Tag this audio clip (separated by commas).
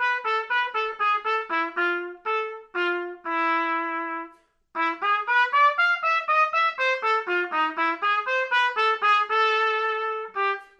playing trumpet, Music, Trumpet, Musical instrument